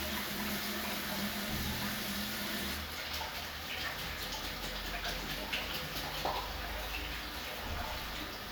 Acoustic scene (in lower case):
restroom